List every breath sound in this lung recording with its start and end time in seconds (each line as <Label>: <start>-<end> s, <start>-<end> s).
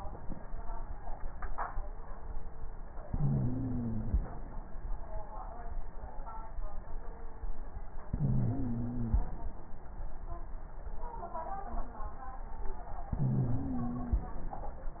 Inhalation: 3.05-4.28 s, 8.12-9.34 s, 13.11-14.34 s
Wheeze: 3.05-4.28 s, 8.12-9.34 s, 13.11-14.34 s